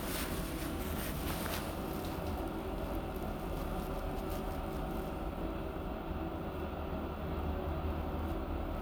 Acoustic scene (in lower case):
elevator